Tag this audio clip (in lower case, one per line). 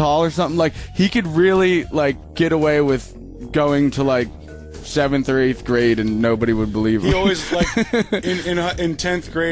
speech
music
radio